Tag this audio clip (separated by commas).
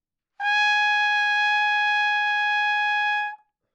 Music, Trumpet, Musical instrument, Brass instrument